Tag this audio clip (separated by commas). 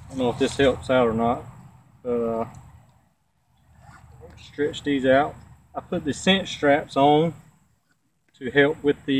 Speech, outside, rural or natural